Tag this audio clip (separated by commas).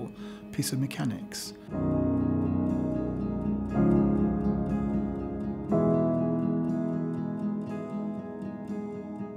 Music, Speech